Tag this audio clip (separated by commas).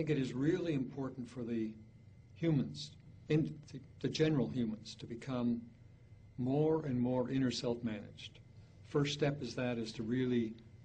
Speech